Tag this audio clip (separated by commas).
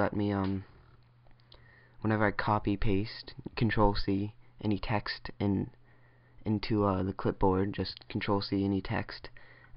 Male speech, monologue, Speech